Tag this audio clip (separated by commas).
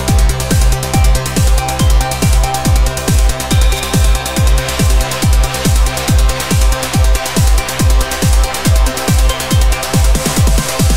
Trance music, New-age music, Music